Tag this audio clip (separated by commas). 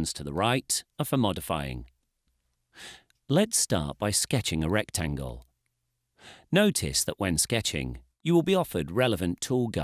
Speech